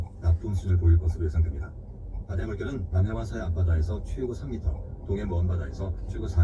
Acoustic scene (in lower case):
car